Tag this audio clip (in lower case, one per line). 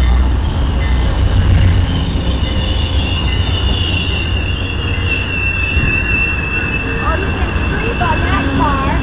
speech
vehicle
train